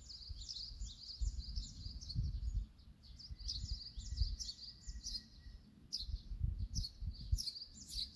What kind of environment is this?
park